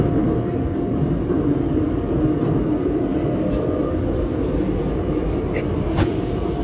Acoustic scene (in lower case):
subway train